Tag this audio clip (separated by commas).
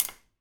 Tap